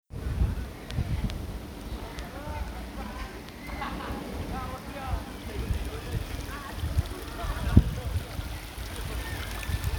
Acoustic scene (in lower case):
park